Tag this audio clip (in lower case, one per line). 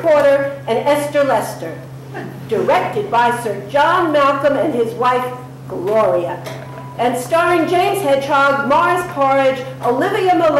speech